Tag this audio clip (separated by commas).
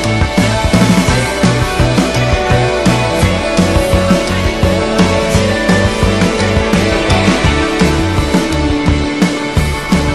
Music